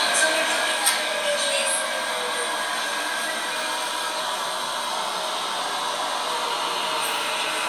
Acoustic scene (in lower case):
subway train